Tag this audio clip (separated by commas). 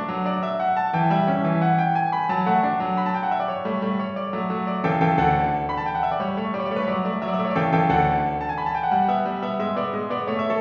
Musical instrument, Music